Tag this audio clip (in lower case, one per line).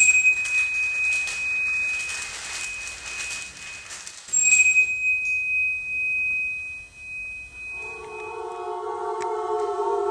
music